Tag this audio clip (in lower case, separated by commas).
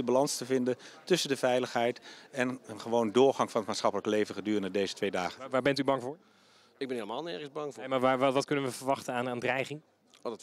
speech